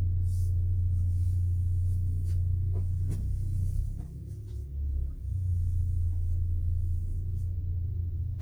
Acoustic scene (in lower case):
car